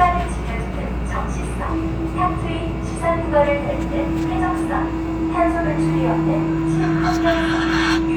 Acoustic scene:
subway train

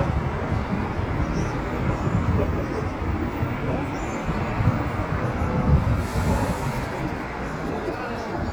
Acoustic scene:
street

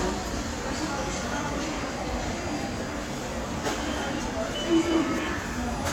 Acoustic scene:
subway station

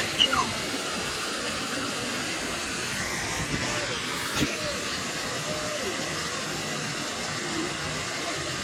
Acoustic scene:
park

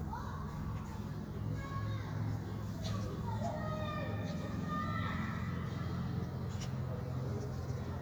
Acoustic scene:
park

